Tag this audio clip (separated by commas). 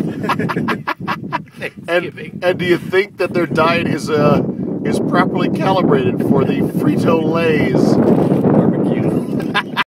Speech